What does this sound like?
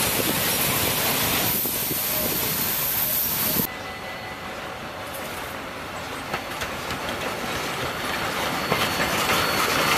A steam sound hiss